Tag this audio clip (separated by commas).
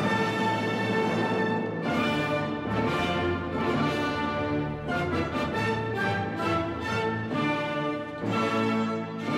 Music